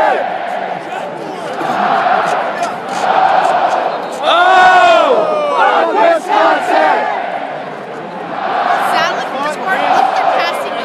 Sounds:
speech

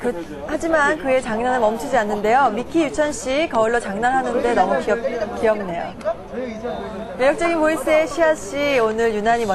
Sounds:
speech

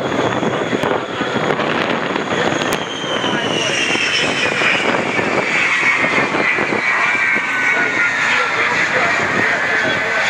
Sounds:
speech
aircraft engine
outside, rural or natural

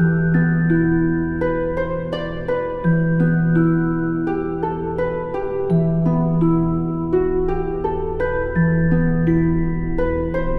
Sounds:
music

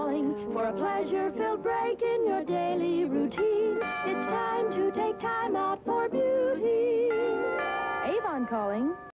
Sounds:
ding
clang

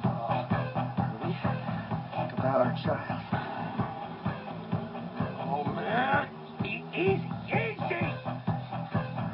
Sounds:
music
speech

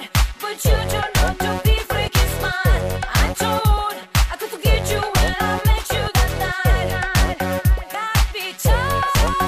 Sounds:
funk

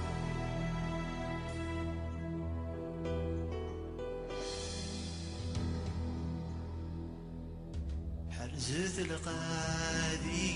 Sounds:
music

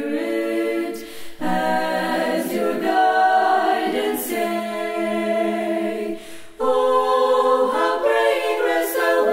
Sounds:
choir

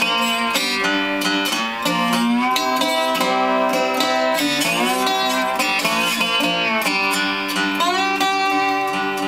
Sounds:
musical instrument
music
strum
guitar
electric guitar
plucked string instrument

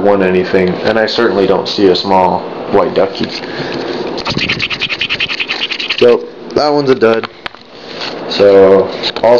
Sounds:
speech
scratch

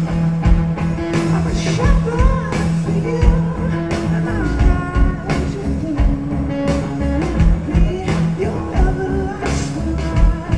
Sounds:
music

